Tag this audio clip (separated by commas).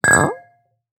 Chink, Glass